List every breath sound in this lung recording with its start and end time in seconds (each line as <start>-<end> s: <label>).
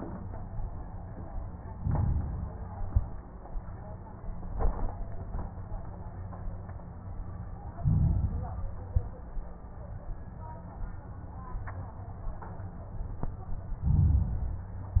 1.67-2.62 s: inhalation
2.62-3.25 s: exhalation
7.75-8.63 s: inhalation
8.63-9.31 s: exhalation
13.81-15.00 s: inhalation